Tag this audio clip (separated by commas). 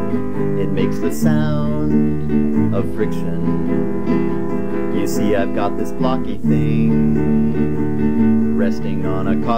Music, Tender music